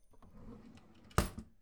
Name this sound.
wooden drawer closing